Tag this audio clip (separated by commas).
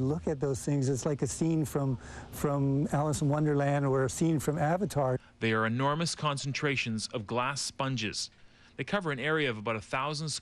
Speech